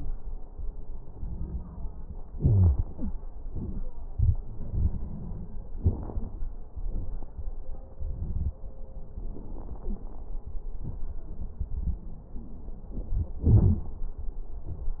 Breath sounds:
2.38-2.79 s: wheeze
2.92-3.15 s: wheeze

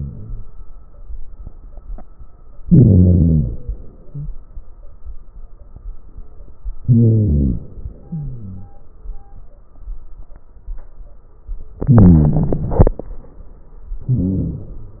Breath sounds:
2.70-4.20 s: inhalation
6.84-8.72 s: inhalation
11.81-13.48 s: inhalation
14.07-15.00 s: inhalation

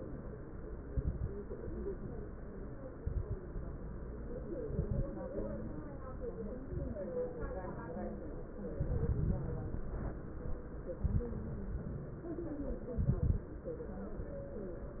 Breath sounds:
0.83-1.38 s: exhalation
0.83-1.38 s: crackles
3.00-3.40 s: exhalation
3.00-3.40 s: crackles
4.73-5.24 s: exhalation
4.73-5.24 s: crackles
6.65-7.05 s: exhalation
6.65-7.05 s: crackles
8.76-9.84 s: exhalation
8.76-9.84 s: crackles
12.96-13.53 s: exhalation
12.96-13.53 s: crackles

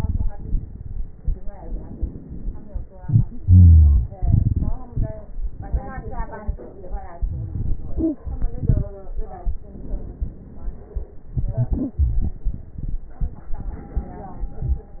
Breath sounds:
0.00-1.29 s: exhalation
0.00-1.29 s: crackles
1.52-2.81 s: inhalation
2.98-5.42 s: exhalation
3.40-4.06 s: wheeze
5.49-7.18 s: inhalation
7.16-9.58 s: exhalation
9.61-11.27 s: inhalation
11.36-13.51 s: exhalation
13.54-15.00 s: inhalation
13.54-15.00 s: crackles

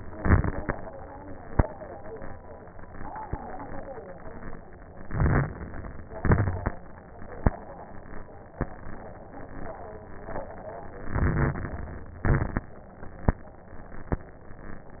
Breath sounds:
0.00-0.72 s: exhalation
0.00-0.72 s: crackles
5.02-5.74 s: inhalation
5.02-5.74 s: crackles
6.14-6.78 s: exhalation
6.14-6.78 s: crackles
11.12-12.22 s: inhalation
11.12-12.22 s: crackles
12.22-12.77 s: exhalation
12.22-12.77 s: crackles

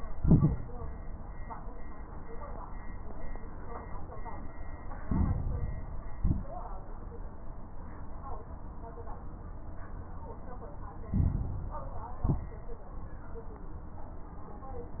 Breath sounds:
0.00-0.57 s: exhalation
0.00-0.57 s: crackles
5.02-6.13 s: inhalation
5.02-6.13 s: crackles
6.16-6.72 s: exhalation
6.16-6.72 s: crackles
11.02-12.14 s: inhalation
11.02-12.14 s: crackles
12.22-12.79 s: exhalation
12.22-12.79 s: crackles

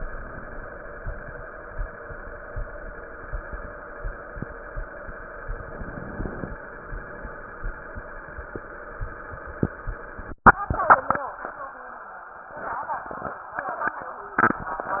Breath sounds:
5.49-6.56 s: inhalation

